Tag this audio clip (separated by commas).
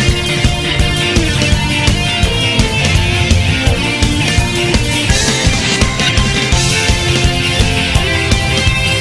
Music